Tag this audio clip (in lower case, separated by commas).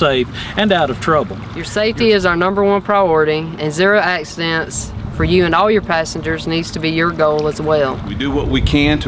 speech